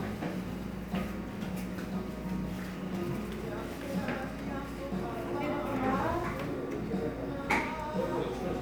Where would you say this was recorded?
in a cafe